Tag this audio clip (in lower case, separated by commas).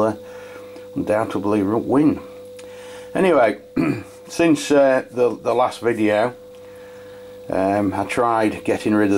speech